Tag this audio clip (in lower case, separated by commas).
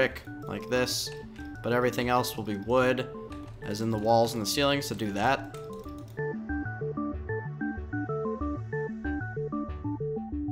music, speech